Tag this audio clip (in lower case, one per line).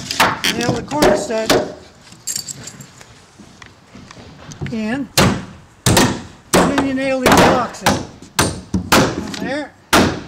hammering nails